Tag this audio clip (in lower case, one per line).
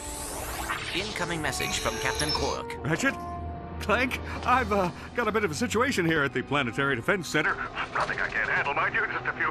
speech
music